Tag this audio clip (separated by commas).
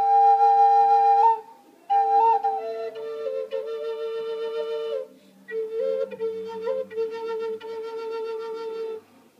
Flute, Music